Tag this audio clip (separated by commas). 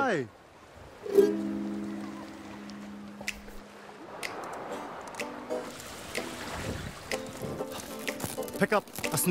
Speech, Music